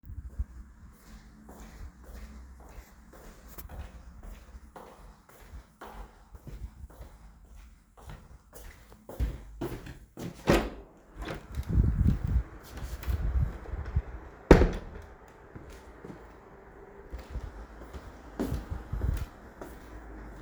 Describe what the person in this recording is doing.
I started in the hallway and opened the door to my room. I walked into the room for a few steps and then switched the light on. Wind and faint sounds from outside the window are audible in the background.